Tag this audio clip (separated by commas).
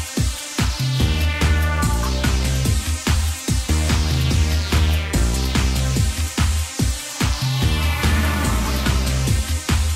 Music